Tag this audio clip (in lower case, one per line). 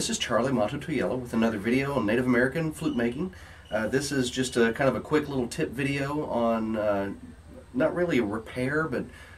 speech